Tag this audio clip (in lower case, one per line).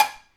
dishes, pots and pans
domestic sounds